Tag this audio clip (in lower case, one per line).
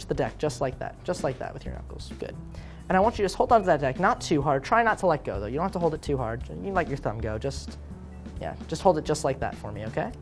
speech
music